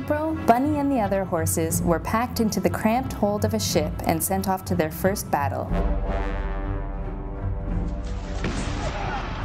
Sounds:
speech, music

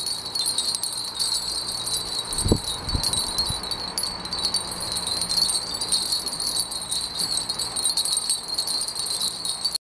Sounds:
chime, wind chime

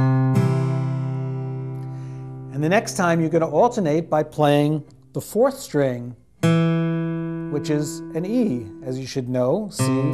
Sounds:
music, acoustic guitar, speech

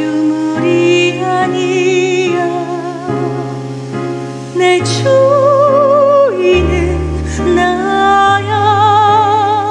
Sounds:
music, opera, singing

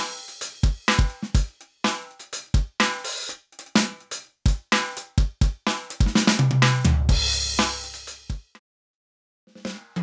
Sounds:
drum, musical instrument, drum kit, music

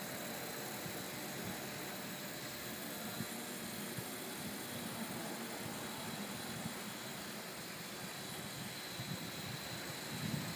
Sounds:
speech

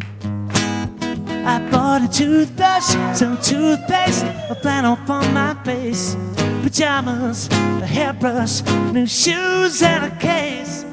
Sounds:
singing

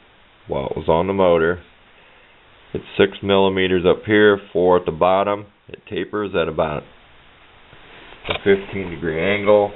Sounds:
speech

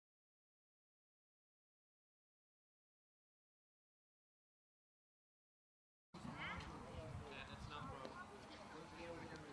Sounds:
speech

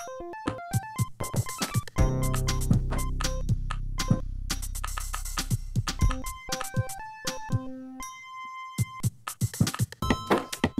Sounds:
music

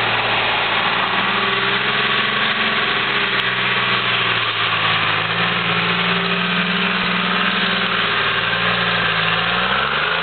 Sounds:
vehicle, truck

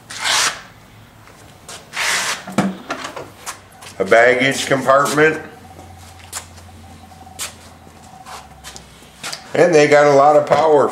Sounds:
speech

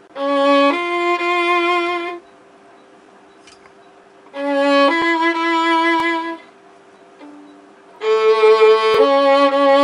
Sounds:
fiddle, music, musical instrument

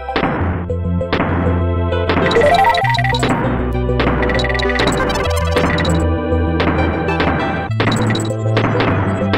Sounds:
music

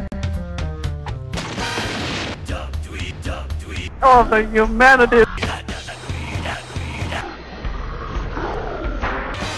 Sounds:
music, speech

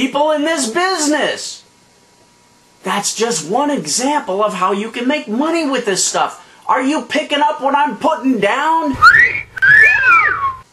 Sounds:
inside a small room, speech

